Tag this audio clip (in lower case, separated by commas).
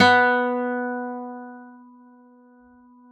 musical instrument, plucked string instrument, music, guitar, acoustic guitar